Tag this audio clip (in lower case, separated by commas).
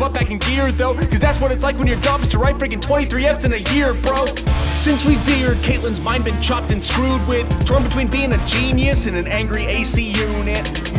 rapping